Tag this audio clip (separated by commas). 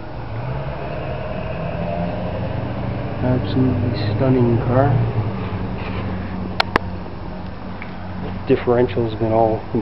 Speech, Car, outside, urban or man-made, Vehicle